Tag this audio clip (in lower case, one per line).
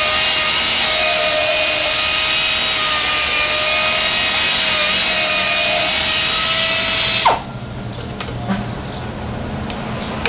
tools